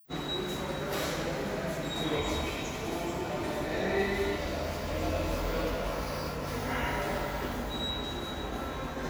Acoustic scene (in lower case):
subway station